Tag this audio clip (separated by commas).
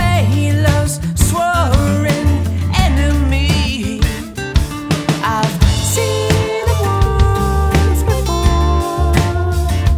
Music, Guitar, Bass guitar, Plucked string instrument